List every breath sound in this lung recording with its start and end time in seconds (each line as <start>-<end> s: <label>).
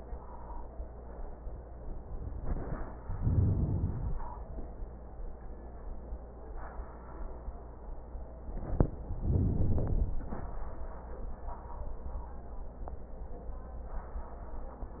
3.08-4.44 s: inhalation
9.17-10.53 s: inhalation